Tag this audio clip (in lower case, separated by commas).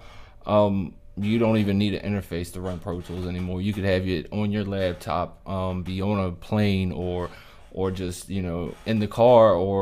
speech